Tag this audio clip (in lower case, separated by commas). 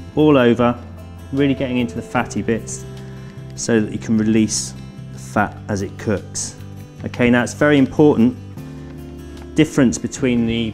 music, speech